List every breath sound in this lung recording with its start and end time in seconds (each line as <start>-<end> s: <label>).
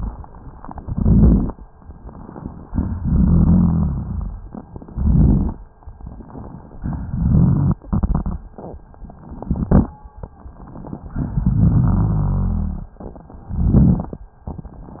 0.78-1.60 s: inhalation
0.78-1.60 s: crackles
2.66-4.42 s: exhalation
2.66-4.42 s: crackles
4.93-5.64 s: inhalation
4.93-5.64 s: crackles
6.66-8.56 s: exhalation
6.66-8.56 s: crackles
9.16-10.02 s: inhalation
9.16-10.02 s: crackles
11.08-12.98 s: exhalation
11.08-12.98 s: crackles
13.43-14.29 s: inhalation
13.43-14.29 s: crackles